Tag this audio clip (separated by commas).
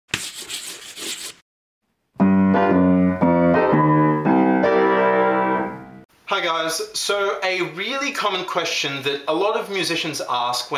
Musical instrument, Speech, Keyboard (musical), Music, Piano, Jazz